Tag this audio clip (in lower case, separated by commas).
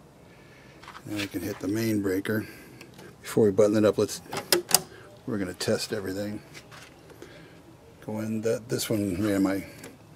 speech